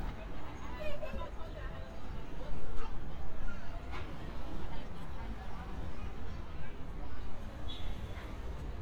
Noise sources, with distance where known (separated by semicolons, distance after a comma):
person or small group talking